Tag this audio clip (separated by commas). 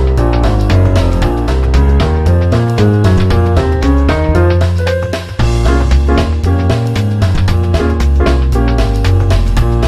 Music